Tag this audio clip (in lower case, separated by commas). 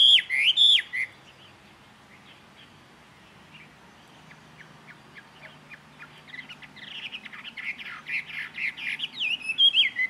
bird, tweet, bird chirping, bird vocalization